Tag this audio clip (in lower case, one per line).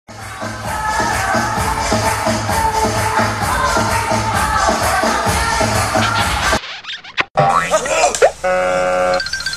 inside a large room or hall
music
outside, rural or natural